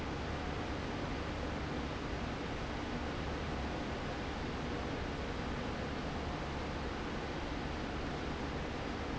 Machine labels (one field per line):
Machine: fan